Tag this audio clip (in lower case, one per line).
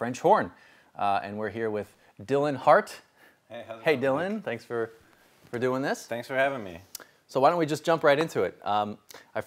speech